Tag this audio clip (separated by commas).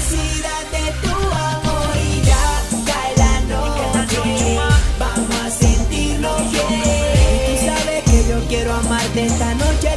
Music, Funk